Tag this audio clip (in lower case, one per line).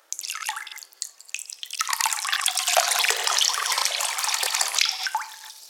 liquid
drip